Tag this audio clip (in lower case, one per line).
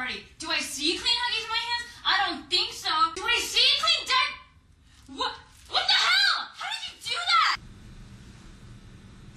speech
inside a small room